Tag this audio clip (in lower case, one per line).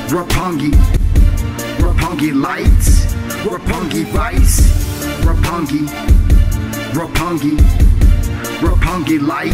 music
theme music